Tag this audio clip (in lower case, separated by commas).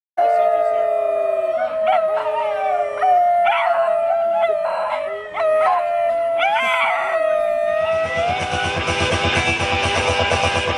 dog, canids, animal, speech, music, howl